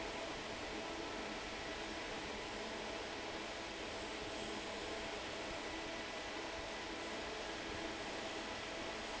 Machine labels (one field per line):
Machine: fan